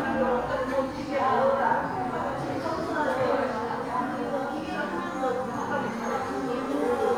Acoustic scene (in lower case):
crowded indoor space